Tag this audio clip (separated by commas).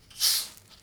Hiss